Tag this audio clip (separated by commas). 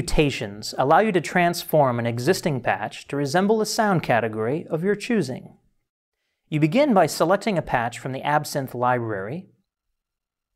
Speech